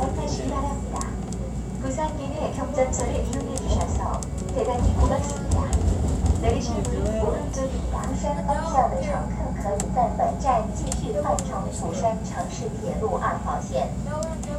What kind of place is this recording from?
subway train